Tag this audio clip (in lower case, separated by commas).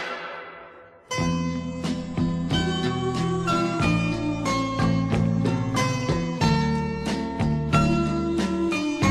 music